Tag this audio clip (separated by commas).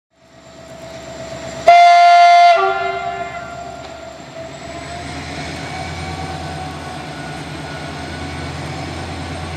Train horn, train horning